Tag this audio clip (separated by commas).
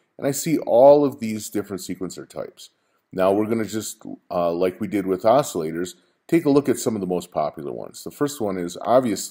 Speech